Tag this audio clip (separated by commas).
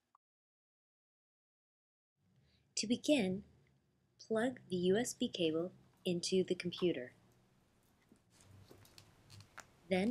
Speech